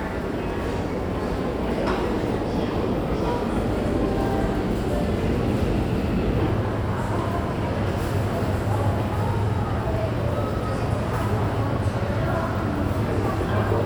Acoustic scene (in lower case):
subway station